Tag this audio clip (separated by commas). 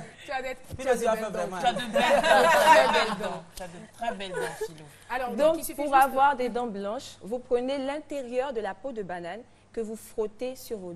Speech